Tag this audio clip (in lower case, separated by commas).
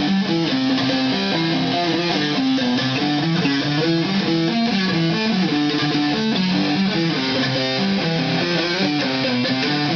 plucked string instrument, guitar, musical instrument, bass guitar, strum, music